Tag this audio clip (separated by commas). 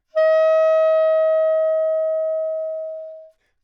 Music, woodwind instrument, Musical instrument